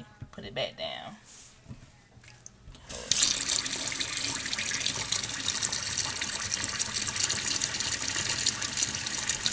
Water is splashing into a sink and woman speaks briefly